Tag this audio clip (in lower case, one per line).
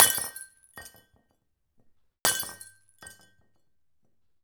glass
shatter